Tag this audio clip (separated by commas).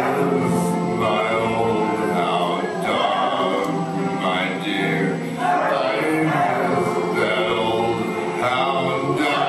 Music